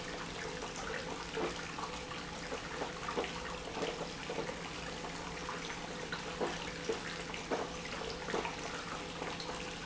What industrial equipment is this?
pump